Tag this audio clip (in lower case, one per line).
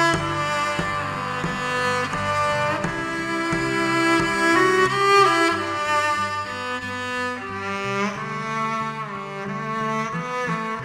musical instrument
cello
music